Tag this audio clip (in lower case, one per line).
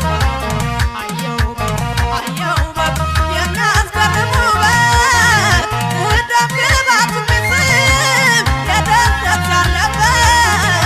folk music
music